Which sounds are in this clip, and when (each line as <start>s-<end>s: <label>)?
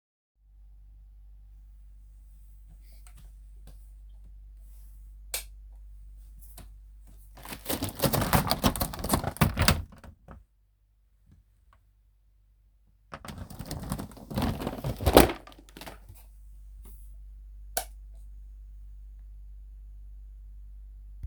5.3s-5.5s: light switch
13.1s-15.5s: door
17.7s-17.9s: light switch